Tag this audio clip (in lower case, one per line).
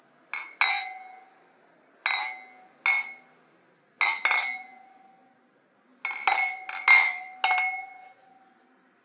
glass